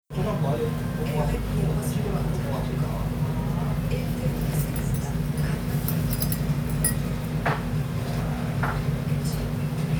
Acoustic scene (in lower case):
restaurant